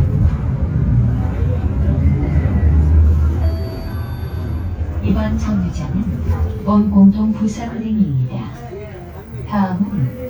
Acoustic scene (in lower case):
bus